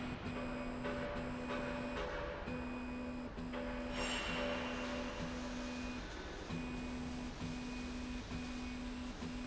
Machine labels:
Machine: slide rail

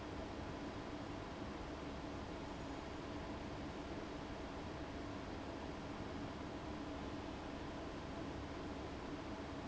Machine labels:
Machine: fan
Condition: abnormal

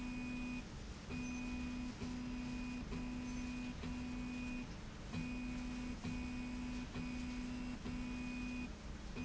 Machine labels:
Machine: slide rail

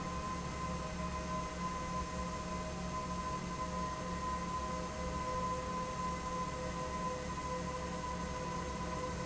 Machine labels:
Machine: fan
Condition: abnormal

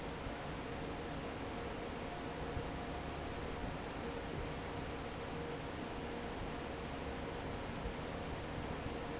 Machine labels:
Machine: fan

